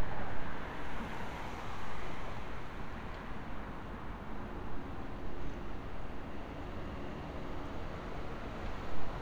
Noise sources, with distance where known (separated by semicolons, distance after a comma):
background noise